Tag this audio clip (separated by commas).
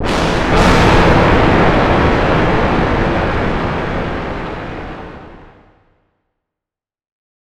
Thunderstorm, Thunder